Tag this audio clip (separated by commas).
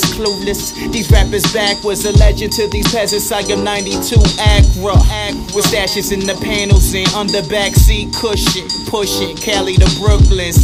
Music